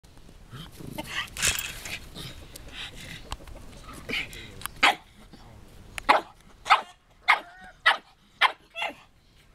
A dog is growling and barking, a chicken is cackling, metal clinks, and an adult male is speaking in the background